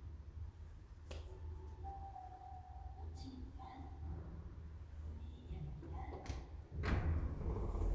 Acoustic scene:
elevator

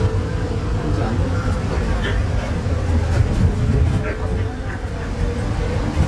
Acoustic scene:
bus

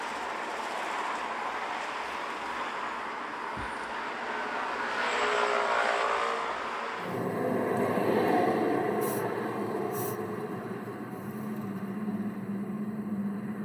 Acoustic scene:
street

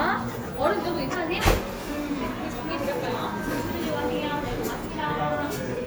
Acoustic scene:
cafe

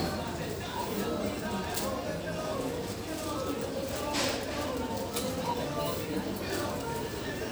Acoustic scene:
crowded indoor space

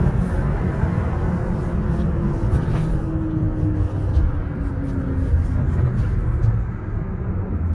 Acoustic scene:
bus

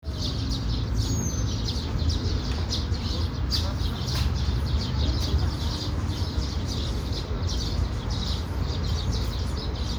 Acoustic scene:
park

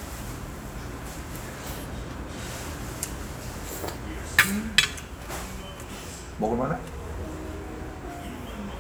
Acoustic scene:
restaurant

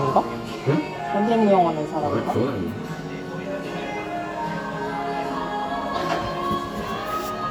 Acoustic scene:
cafe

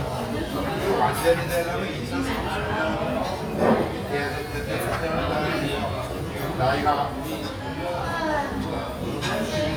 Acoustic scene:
restaurant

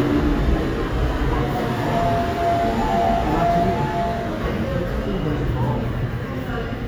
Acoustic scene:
subway station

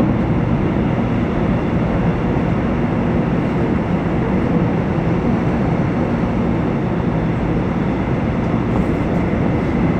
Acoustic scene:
subway train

